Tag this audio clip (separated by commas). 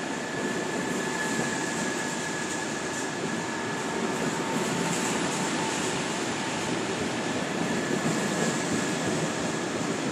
Vehicle